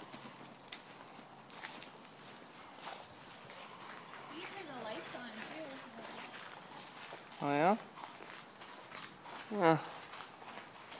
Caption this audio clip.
A rumbling clip-clop with background speech